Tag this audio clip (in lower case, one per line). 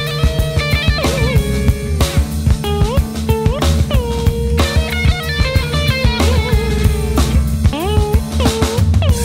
guitar
psychedelic rock
music